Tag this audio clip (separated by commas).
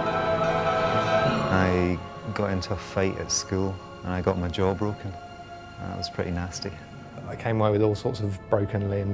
Music, Speech